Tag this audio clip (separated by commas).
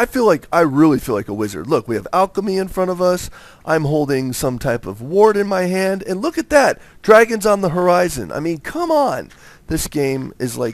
Speech